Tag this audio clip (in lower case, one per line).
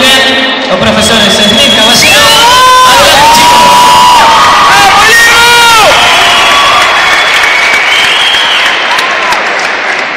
speech